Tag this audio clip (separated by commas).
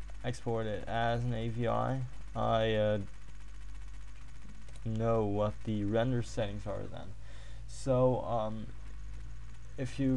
Speech